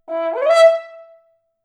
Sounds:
brass instrument, musical instrument, music

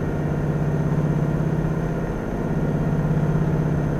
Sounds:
engine, water vehicle, vehicle

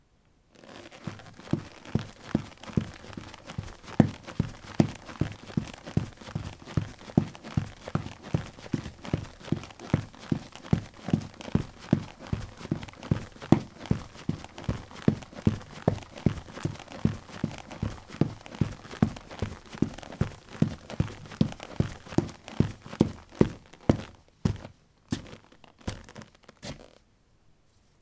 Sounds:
run

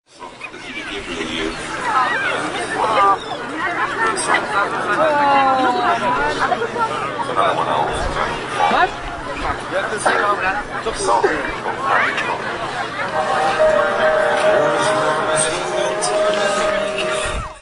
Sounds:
crowd, human group actions

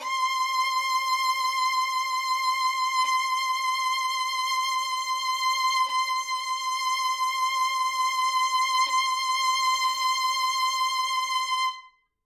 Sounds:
music, bowed string instrument, musical instrument

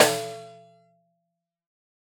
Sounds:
snare drum, music, musical instrument, percussion, drum

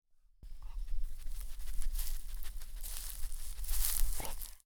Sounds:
animal, dog, pets

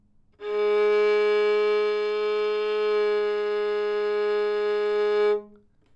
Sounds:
bowed string instrument, music, musical instrument

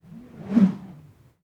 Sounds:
swish

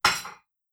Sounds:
dishes, pots and pans, home sounds

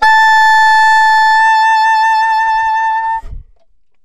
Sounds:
wind instrument, musical instrument, music

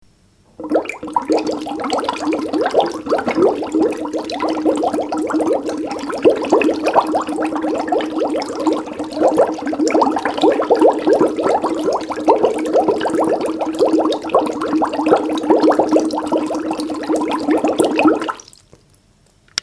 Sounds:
domestic sounds, sink (filling or washing)

